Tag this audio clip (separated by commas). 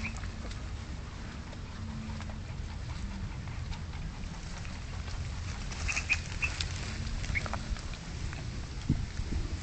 Animal